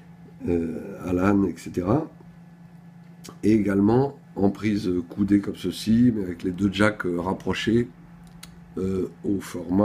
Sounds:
Speech

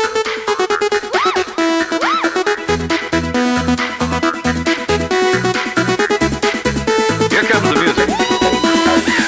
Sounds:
Trance music

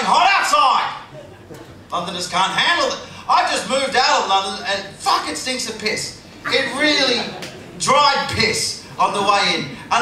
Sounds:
man speaking, Speech

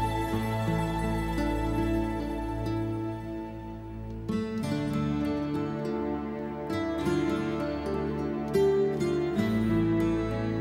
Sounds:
Music

